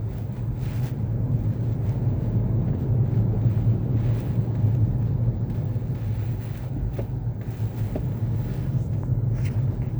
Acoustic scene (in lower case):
car